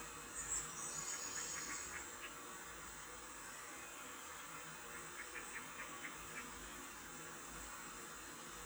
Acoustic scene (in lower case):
park